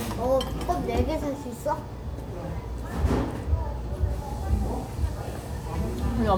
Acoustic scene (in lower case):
restaurant